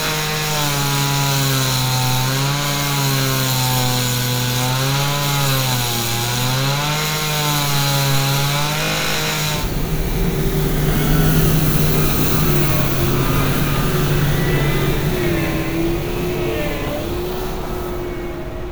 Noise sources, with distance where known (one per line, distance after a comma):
unidentified powered saw, near